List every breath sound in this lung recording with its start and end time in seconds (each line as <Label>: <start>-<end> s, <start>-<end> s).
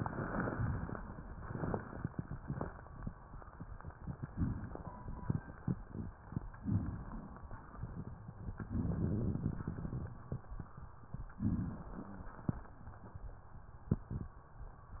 Inhalation: 4.29-5.28 s, 6.68-7.67 s, 8.60-9.58 s, 11.35-12.33 s